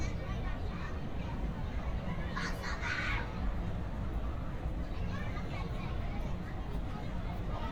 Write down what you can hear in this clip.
person or small group talking, person or small group shouting